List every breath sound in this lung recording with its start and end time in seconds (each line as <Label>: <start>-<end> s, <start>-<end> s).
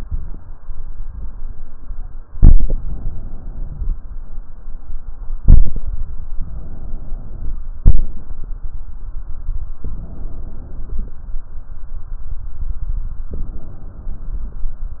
Inhalation: 2.35-3.93 s, 6.33-7.61 s, 9.84-11.22 s, 13.31-14.69 s
Exhalation: 7.78-8.27 s